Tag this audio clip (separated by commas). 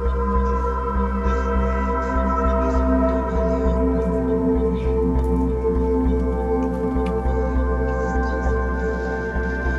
Music, outside, rural or natural